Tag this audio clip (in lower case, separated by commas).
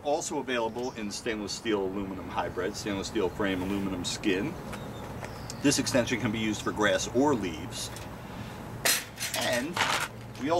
speech